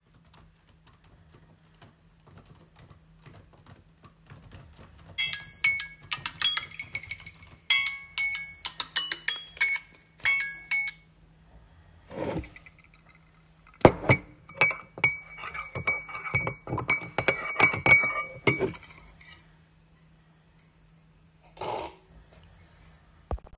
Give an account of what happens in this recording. I was typing on my keyboard, I heard my alarm and I hit the snooze button. I then proceeded to stir and slurp my afternoon coffee